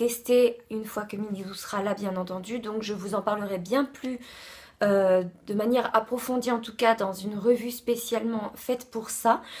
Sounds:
speech

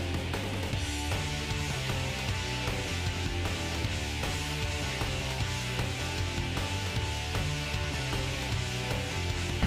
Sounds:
music

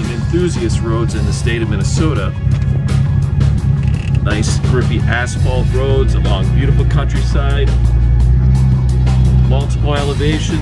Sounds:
speech, music

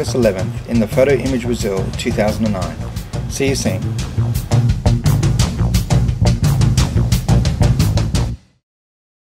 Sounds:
music, speech

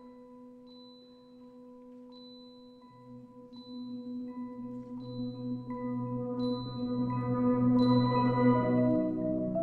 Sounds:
xylophone, mallet percussion, glockenspiel, playing marimba

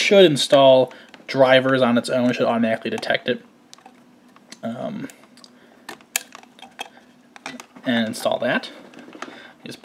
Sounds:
speech

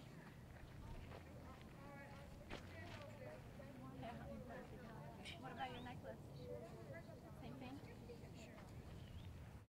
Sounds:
speech

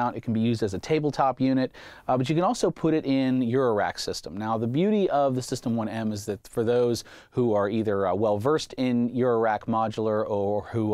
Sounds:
speech

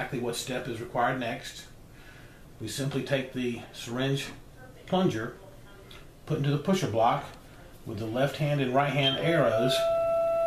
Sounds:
speech

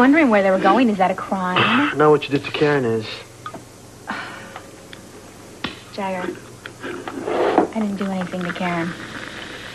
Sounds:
speech

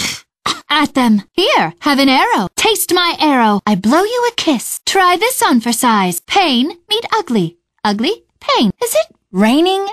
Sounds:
speech

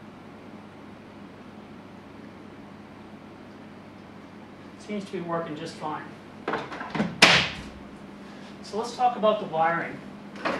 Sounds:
speech

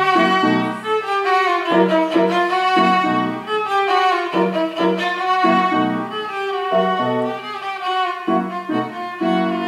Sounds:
music, musical instrument, fiddle

